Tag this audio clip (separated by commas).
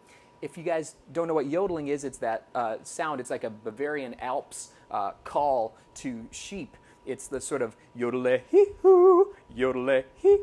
Yodeling